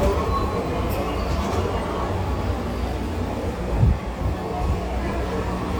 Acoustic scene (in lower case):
subway station